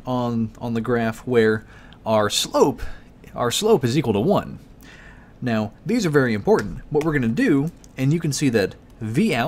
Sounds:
Speech

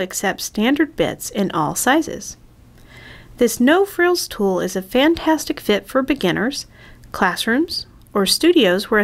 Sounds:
Speech

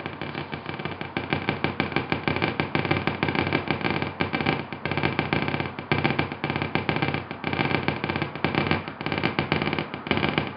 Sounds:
Synthesizer

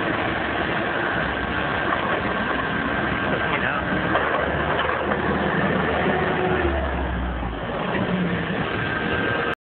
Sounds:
Speech, Truck, Vehicle

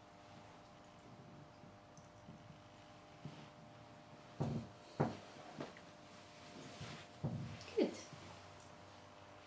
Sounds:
Speech

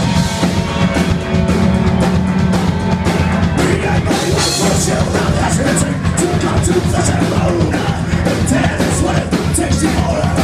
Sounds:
Music, thwack

